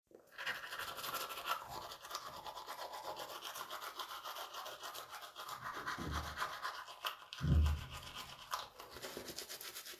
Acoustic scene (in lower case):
restroom